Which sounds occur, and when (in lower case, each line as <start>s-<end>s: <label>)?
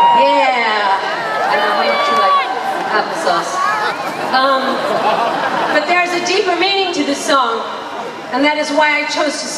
0.0s-2.4s: female speech
0.0s-9.5s: crowd
0.0s-9.5s: inside a public space
2.8s-3.4s: female speech
4.2s-4.7s: female speech
5.6s-7.6s: female speech
8.3s-9.5s: female speech